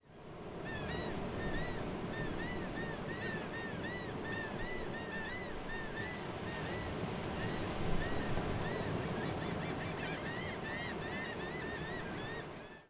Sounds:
Water, Ocean

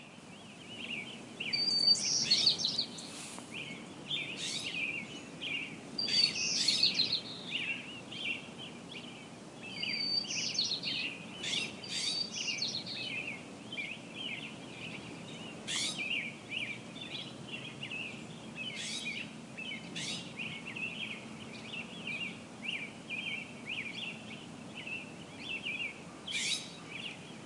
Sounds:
Bird, bird song, tweet, Animal, Wild animals

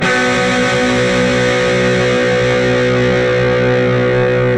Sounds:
Musical instrument, Plucked string instrument, Music, Electric guitar, Guitar

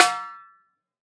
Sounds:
Music, Percussion, Drum, Musical instrument, Snare drum

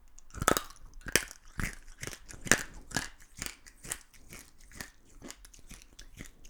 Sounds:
Chewing

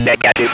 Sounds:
Speech, Human voice

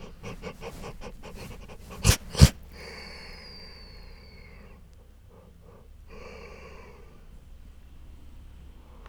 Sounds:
Animal, Dog, Domestic animals

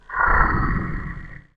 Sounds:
Animal

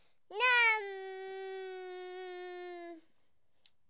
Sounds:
Human voice, Speech

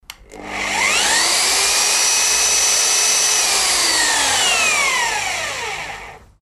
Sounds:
Tools, Power tool

